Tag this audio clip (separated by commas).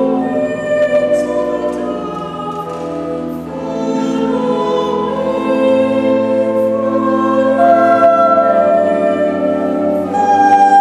Music